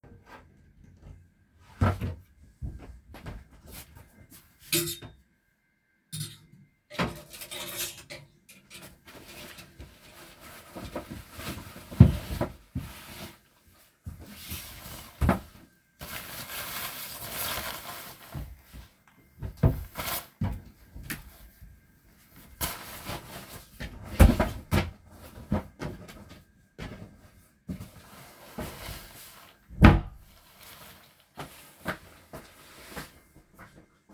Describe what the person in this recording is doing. I opened a wardrobe, I took some cloths, I closed the wardrobe Then walked away